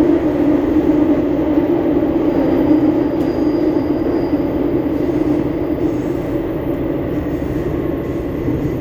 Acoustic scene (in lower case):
subway train